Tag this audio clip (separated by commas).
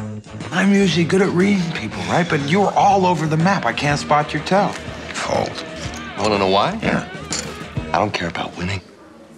Speech, Music